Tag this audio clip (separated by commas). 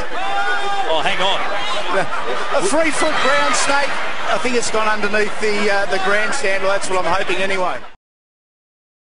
outside, urban or man-made, Speech